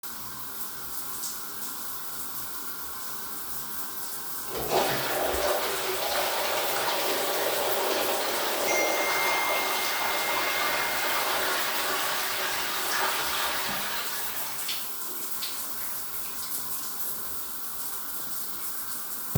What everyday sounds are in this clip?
running water, toilet flushing, phone ringing